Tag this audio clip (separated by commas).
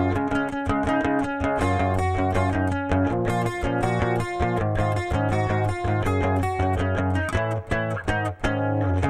Electric guitar, Musical instrument, Guitar, Plucked string instrument, Music